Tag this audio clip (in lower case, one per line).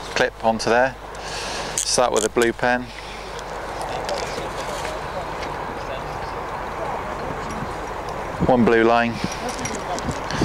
speech